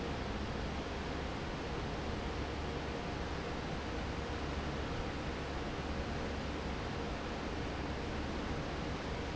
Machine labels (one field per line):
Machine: fan